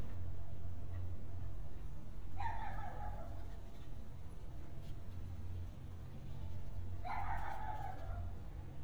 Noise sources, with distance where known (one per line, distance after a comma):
dog barking or whining